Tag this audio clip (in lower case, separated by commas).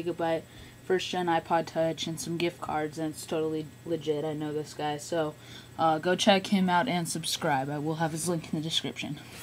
speech